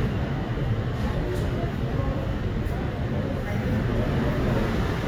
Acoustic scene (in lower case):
subway station